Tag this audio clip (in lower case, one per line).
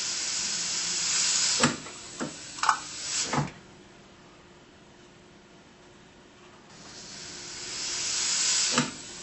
inside a small room